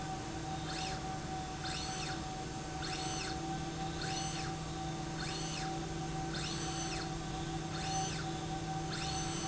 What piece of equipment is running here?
slide rail